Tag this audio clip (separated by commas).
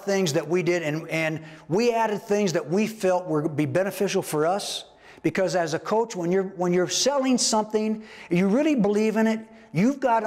Speech